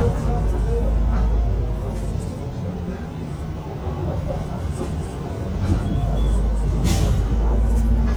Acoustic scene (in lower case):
bus